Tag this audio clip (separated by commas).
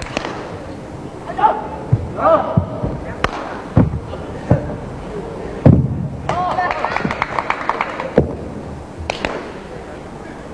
Speech